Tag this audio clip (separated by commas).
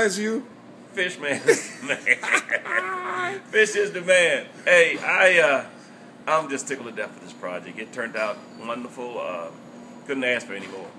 Speech, inside a small room